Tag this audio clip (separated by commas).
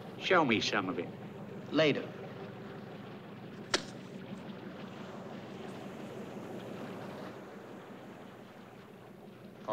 Speech